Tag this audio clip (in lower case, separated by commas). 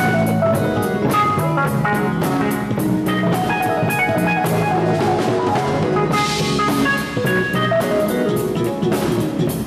music, piano, drum, musical instrument, keyboard (musical)